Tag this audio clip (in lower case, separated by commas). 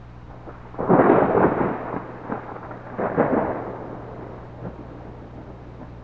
thunderstorm, thunder